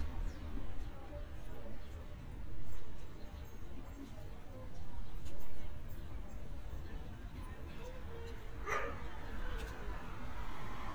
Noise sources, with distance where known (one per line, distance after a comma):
dog barking or whining, far